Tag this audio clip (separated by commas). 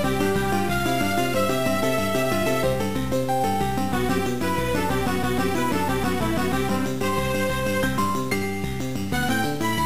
Music, Theme music